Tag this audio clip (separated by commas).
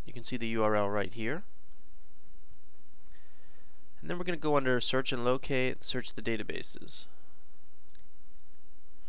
Speech, inside a small room